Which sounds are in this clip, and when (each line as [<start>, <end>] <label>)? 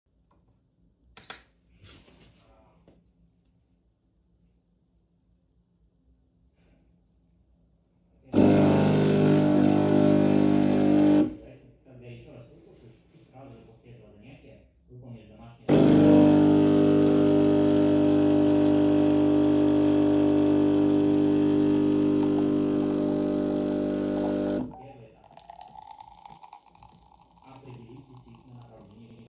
[1.19, 2.14] coffee machine
[8.33, 11.47] coffee machine
[15.64, 24.88] coffee machine
[22.92, 29.29] running water